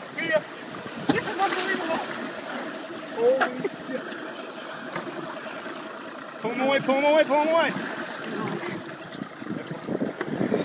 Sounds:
Speech, Slosh, Ocean

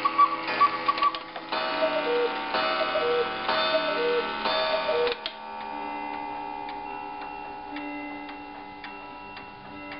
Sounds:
Tick-tock

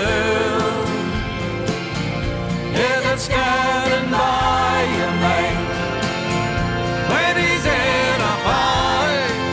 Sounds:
Singing, Music

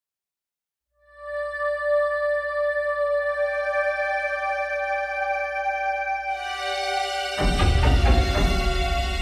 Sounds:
Music

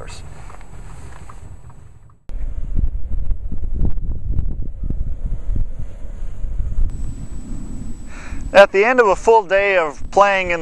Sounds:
Car, Speech, Vehicle, outside, rural or natural

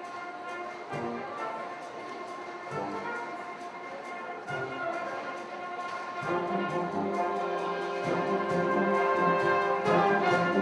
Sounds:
Music

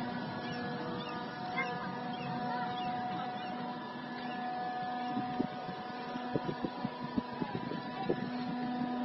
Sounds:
sailing ship, Vehicle, Speech, Water vehicle

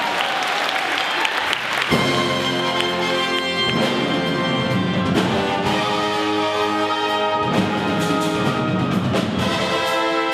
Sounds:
Music, Orchestra

